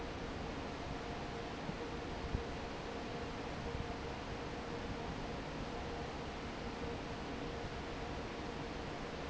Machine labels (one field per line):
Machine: fan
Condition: normal